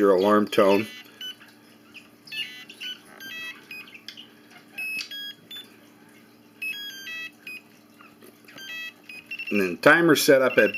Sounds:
Speech

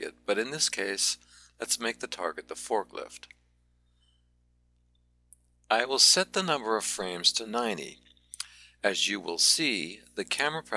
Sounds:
Speech

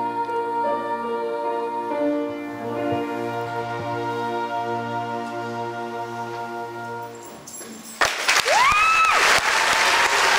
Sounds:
Music, Choir, Applause

